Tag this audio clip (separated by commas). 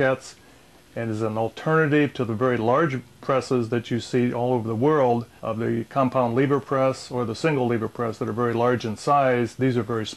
Speech